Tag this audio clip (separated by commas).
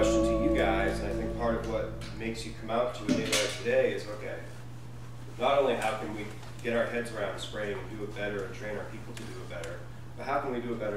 Music, Speech